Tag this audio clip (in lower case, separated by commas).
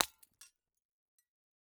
shatter, glass